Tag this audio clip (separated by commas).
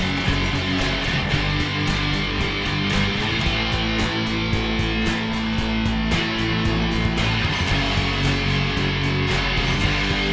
Bass guitar, Acoustic guitar, Strum, Guitar, Music, Musical instrument, Plucked string instrument